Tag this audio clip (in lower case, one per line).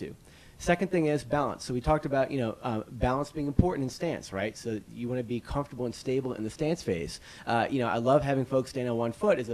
speech